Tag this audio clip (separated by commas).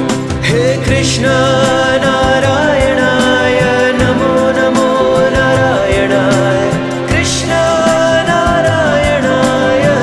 Singing, Music